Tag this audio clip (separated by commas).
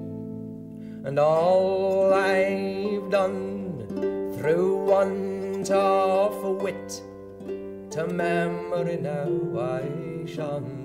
Music